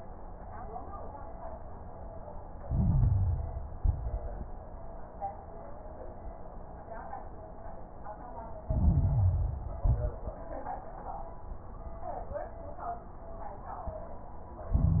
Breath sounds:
2.62-3.76 s: inhalation
2.62-3.76 s: crackles
3.78-4.39 s: exhalation
3.78-4.39 s: crackles
8.66-9.80 s: inhalation
8.66-9.80 s: crackles
9.84-10.29 s: exhalation
9.84-10.29 s: crackles
14.74-15.00 s: inhalation
14.74-15.00 s: crackles

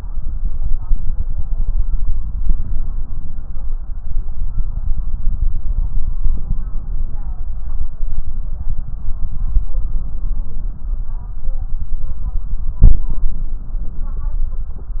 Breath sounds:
12.84-14.25 s: inhalation

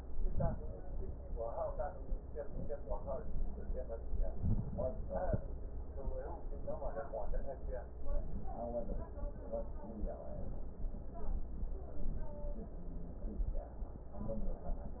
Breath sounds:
0.06-0.77 s: inhalation

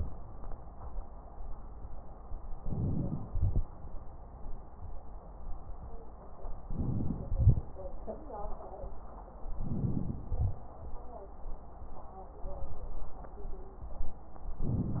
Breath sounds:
2.60-3.27 s: inhalation
2.60-3.27 s: crackles
3.28-3.64 s: exhalation
6.66-7.33 s: inhalation
6.66-7.33 s: crackles
7.34-7.62 s: exhalation
9.56-10.31 s: inhalation
9.56-10.31 s: crackles
10.31-10.59 s: exhalation
14.61-15.00 s: inhalation
14.61-15.00 s: crackles

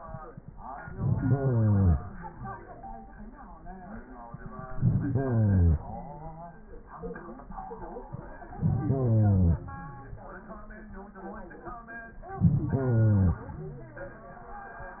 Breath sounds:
0.76-2.10 s: inhalation
4.66-6.00 s: inhalation
8.45-9.79 s: inhalation
12.28-13.49 s: inhalation

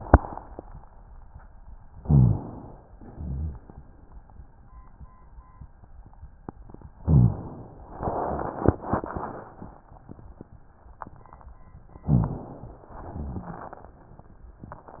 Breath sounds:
1.99-2.41 s: rhonchi
1.99-2.87 s: inhalation
2.98-3.63 s: exhalation
2.98-3.63 s: rhonchi
7.06-7.48 s: rhonchi
7.06-7.97 s: inhalation
12.05-12.51 s: rhonchi
12.05-12.90 s: inhalation
13.09-13.72 s: rhonchi
13.09-13.98 s: exhalation

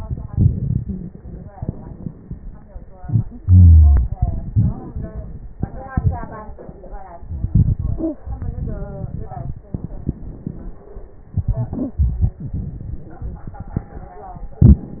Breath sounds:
3.40-4.09 s: wheeze

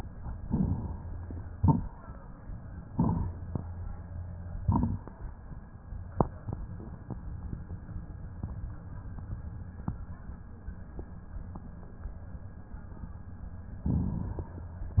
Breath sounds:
0.38-1.27 s: inhalation
0.38-1.27 s: crackles
1.50-2.01 s: exhalation
1.50-2.01 s: crackles
2.85-3.61 s: inhalation
2.85-3.61 s: crackles
4.59-5.11 s: exhalation
4.59-5.11 s: crackles
13.81-14.69 s: inhalation

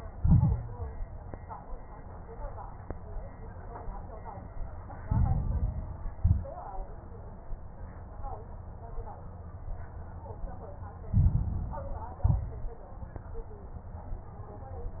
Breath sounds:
0.10-0.72 s: exhalation
0.10-0.72 s: crackles
5.04-6.12 s: inhalation
5.04-6.12 s: crackles
6.16-6.55 s: exhalation
6.16-6.55 s: crackles
11.06-12.14 s: inhalation
11.06-12.14 s: crackles
12.24-12.73 s: exhalation
12.24-12.73 s: crackles

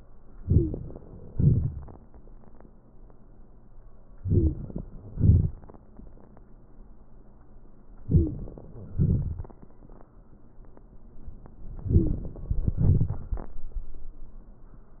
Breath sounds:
0.40-0.95 s: inhalation
0.48-0.76 s: wheeze
1.30-1.70 s: exhalation
4.21-4.59 s: inhalation
4.32-4.55 s: wheeze
5.14-5.52 s: exhalation
8.09-8.37 s: wheeze
8.09-8.38 s: inhalation
8.95-9.50 s: exhalation
11.90-12.21 s: wheeze
11.90-12.28 s: inhalation
12.79-13.18 s: exhalation

